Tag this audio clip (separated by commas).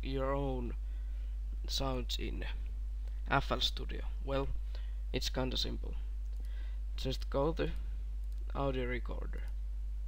Speech